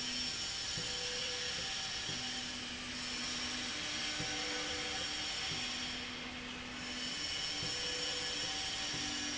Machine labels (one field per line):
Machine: slide rail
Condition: normal